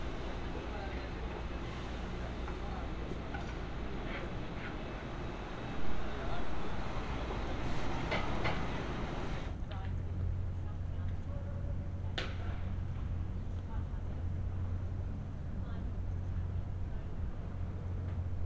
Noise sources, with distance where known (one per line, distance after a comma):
unidentified impact machinery
person or small group talking, far